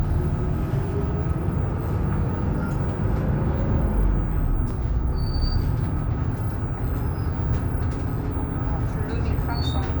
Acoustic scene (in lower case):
bus